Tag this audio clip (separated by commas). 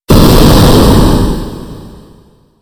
Explosion, Boom